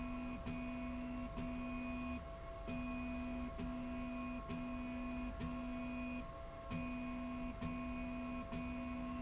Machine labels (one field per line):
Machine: slide rail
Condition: normal